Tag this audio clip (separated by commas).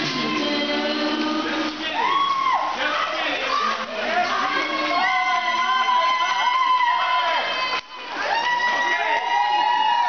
Choir, Female singing